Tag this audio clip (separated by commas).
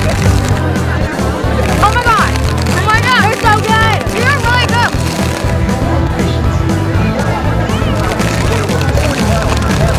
Music, Speech